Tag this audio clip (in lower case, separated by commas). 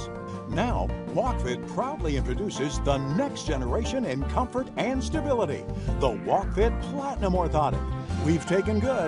speech, music